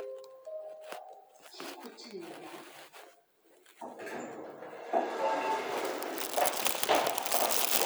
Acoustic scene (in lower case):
elevator